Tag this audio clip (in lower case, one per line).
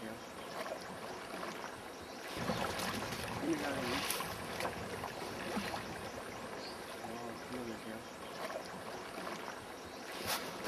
canoe
water vehicle
speech
vehicle